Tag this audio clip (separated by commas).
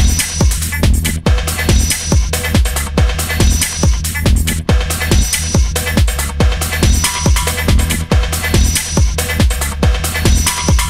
Music